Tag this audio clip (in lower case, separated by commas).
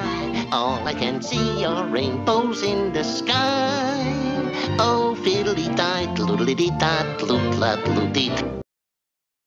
musical instrument, fiddle, music